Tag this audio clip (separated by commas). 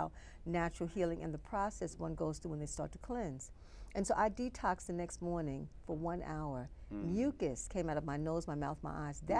Speech